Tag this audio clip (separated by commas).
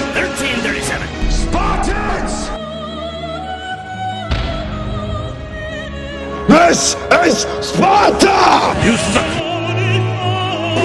Music, Speech